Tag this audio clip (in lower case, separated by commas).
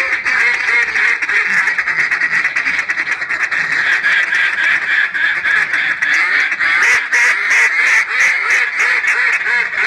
animal, quack, duck